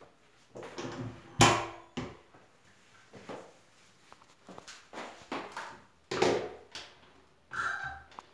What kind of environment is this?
restroom